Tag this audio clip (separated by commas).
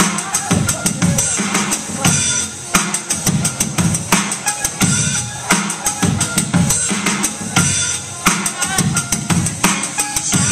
Music, Female singing